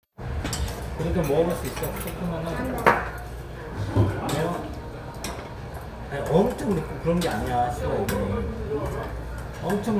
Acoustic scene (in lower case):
restaurant